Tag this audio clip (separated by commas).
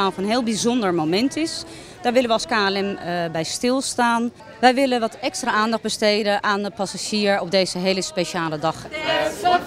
Speech